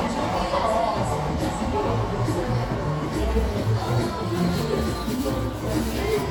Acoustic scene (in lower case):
cafe